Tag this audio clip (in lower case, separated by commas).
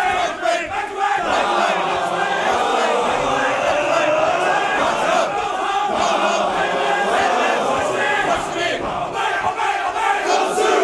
crowd